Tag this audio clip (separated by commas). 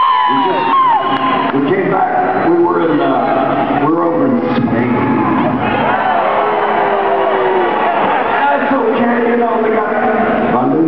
Crowd, Cheering, people crowd